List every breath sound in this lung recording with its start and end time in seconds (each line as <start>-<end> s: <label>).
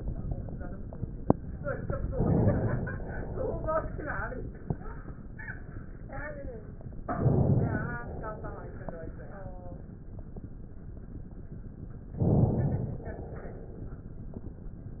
2.11-2.92 s: inhalation
2.92-4.65 s: exhalation
7.06-7.99 s: inhalation
7.99-9.13 s: exhalation
12.16-13.04 s: inhalation
13.05-15.00 s: exhalation